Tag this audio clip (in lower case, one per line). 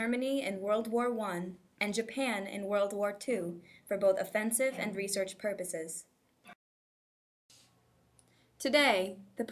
speech